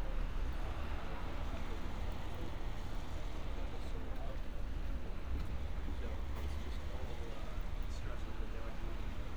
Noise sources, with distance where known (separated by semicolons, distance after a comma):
person or small group talking, far